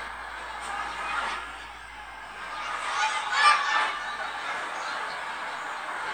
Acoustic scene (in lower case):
residential area